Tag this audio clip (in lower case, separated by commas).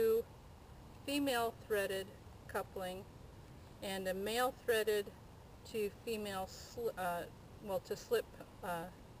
speech